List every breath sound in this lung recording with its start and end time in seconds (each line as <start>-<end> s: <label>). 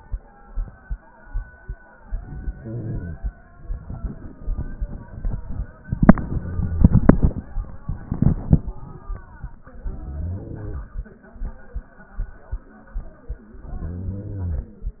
2.02-3.26 s: inhalation
9.76-11.00 s: inhalation
13.57-14.82 s: inhalation